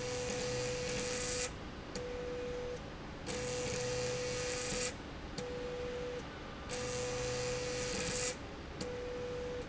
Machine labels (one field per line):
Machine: slide rail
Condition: abnormal